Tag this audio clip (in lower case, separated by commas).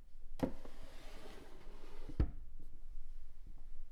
home sounds, drawer open or close